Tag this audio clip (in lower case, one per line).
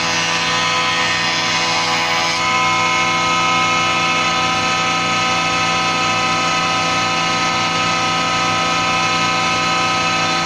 planing timber